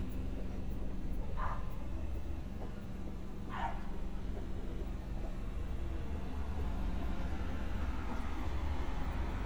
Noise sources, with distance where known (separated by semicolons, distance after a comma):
dog barking or whining